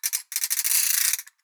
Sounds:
ratchet
mechanisms

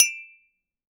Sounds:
glass
chink

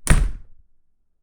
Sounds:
slam
home sounds
door

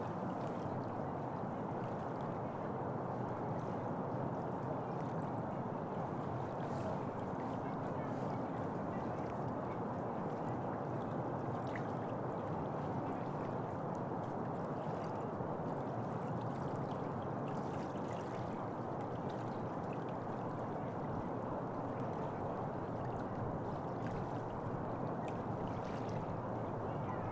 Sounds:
stream
water

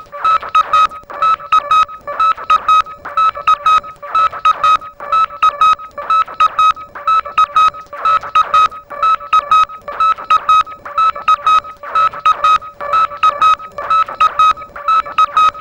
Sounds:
alarm

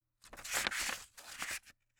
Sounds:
crumpling

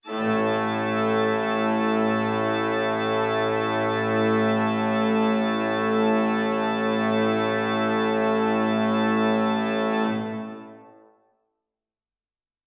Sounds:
musical instrument
keyboard (musical)
organ
music

